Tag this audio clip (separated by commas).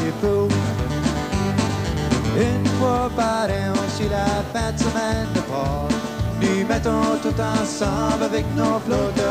Music